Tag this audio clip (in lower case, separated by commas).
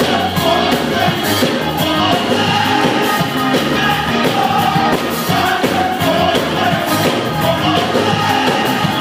music, choir